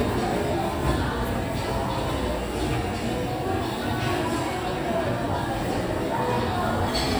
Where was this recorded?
in a restaurant